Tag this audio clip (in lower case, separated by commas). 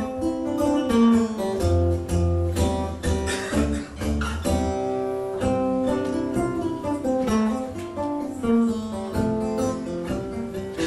musical instrument, inside a large room or hall, guitar, plucked string instrument, music